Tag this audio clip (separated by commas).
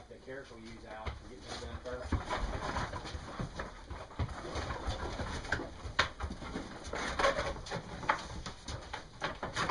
Speech